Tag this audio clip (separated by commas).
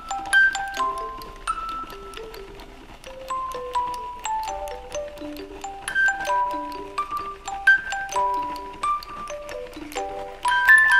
Music